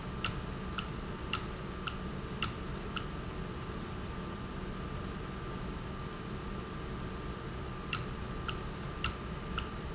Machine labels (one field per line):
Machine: valve